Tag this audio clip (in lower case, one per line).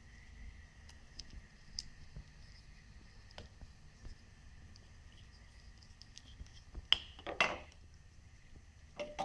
inside a small room